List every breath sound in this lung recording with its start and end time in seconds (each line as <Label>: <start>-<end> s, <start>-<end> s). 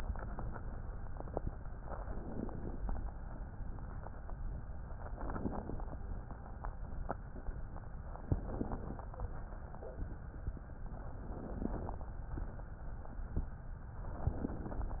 Inhalation: 2.01-2.92 s, 5.08-6.00 s, 8.25-9.11 s, 11.29-12.14 s, 14.17-15.00 s